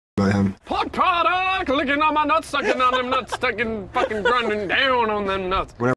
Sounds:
Speech

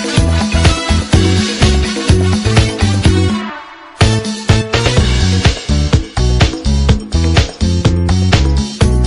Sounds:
Music, Dance music

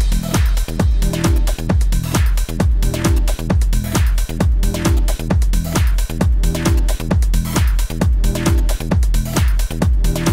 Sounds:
Music

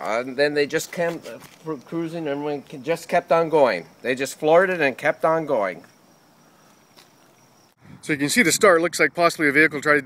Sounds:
Speech

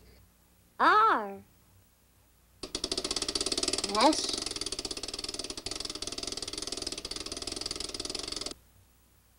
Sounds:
Speech

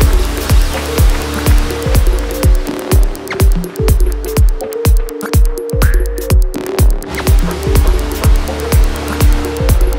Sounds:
Music

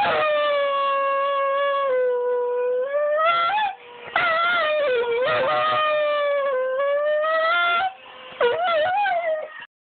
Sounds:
Dog, Animal, Howl, Whimper (dog), Domestic animals

